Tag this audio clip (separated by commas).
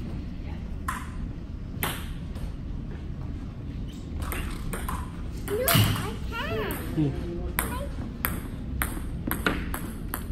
playing table tennis